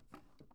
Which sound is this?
wooden drawer opening